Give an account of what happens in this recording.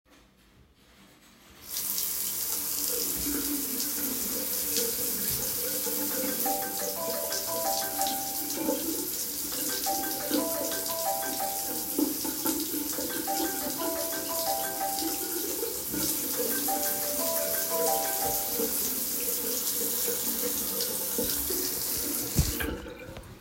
I was washing my hands with soap under running water. While I was doing this, the phone started ringing.